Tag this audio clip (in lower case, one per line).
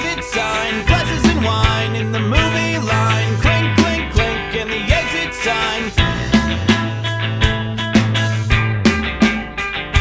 punk rock
music